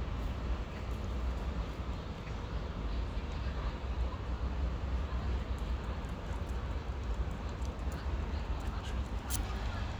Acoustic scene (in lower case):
park